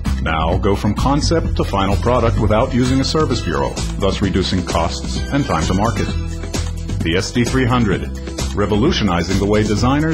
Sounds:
music, speech

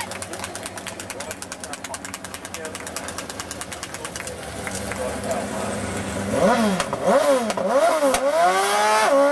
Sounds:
speech, auto racing, vehicle

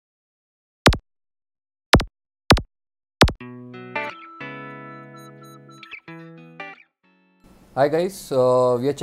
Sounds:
speech, music, inside a small room

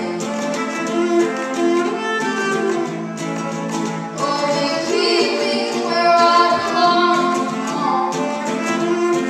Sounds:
music

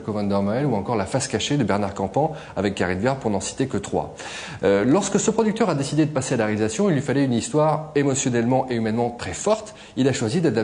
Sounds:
speech

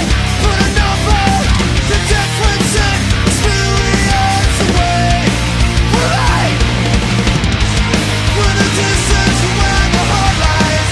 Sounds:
funk, music

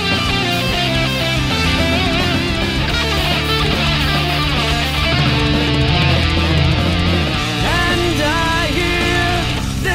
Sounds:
plucked string instrument, electric guitar, music, musical instrument, guitar

